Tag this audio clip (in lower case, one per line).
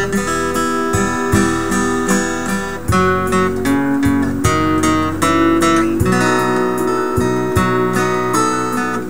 pizzicato